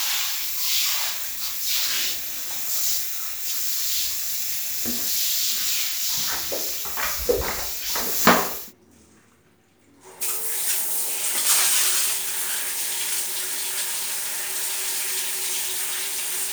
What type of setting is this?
restroom